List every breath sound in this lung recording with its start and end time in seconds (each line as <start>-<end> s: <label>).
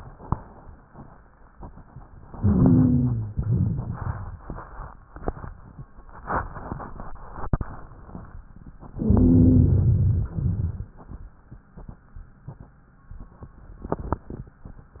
2.33-3.32 s: inhalation
2.35-3.36 s: wheeze
3.36-4.46 s: exhalation
3.40-4.40 s: rhonchi
9.01-10.32 s: inhalation
9.01-10.32 s: wheeze
10.36-10.99 s: exhalation
10.36-10.99 s: crackles